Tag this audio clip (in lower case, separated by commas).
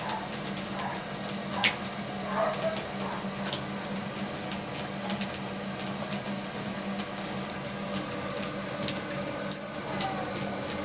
animal, domestic animals, cat